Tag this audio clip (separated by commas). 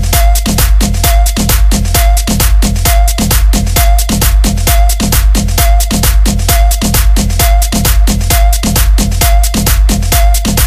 Music